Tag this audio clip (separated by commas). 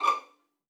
Bowed string instrument, Music, Musical instrument